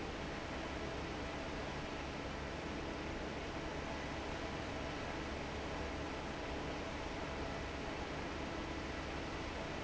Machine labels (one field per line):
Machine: fan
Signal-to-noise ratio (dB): 0 dB